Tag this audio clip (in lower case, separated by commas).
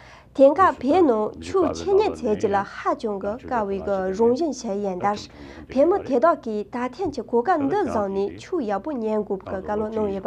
speech